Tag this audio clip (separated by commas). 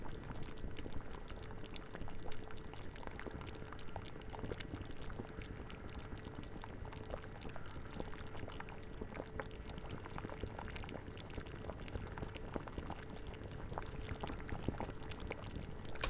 Liquid, Boiling